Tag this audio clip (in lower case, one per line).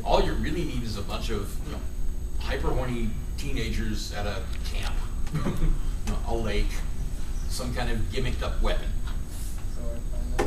speech